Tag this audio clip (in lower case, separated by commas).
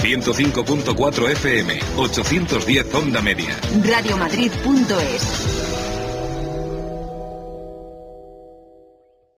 jingle (music), speech, music, radio